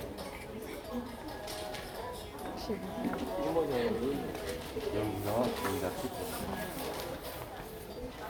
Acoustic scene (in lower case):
crowded indoor space